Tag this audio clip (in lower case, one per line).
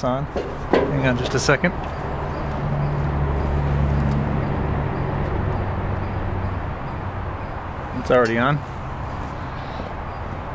speech